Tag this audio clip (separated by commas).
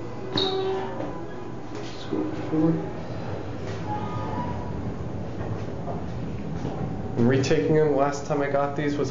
Speech